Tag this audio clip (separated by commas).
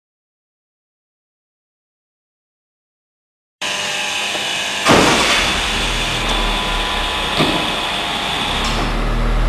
Vehicle, Silence, Car, inside a large room or hall